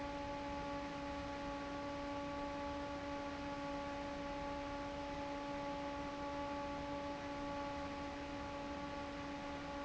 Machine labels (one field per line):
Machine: fan